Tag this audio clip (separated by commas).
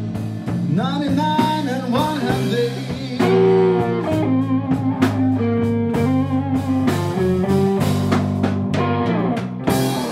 Rock and roll, Music